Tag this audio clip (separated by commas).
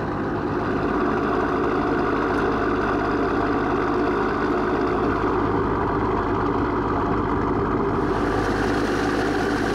Ship, Water vehicle